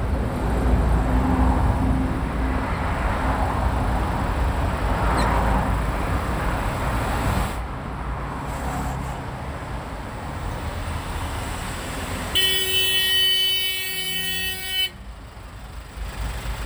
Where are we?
on a street